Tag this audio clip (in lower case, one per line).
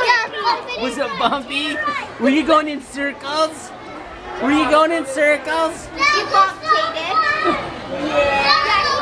speech
outside, urban or man-made
kid speaking
children playing